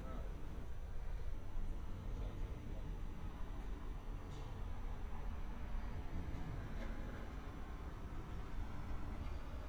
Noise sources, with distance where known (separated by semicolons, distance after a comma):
background noise